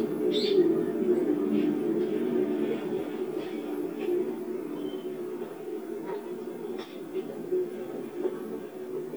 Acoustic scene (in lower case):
park